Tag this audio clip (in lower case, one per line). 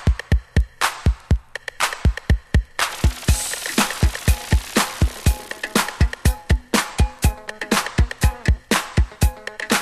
funk
music